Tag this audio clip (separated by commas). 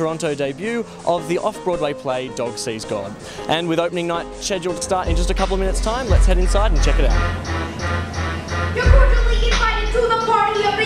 Music, Speech